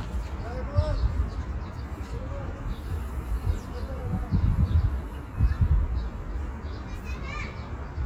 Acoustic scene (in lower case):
park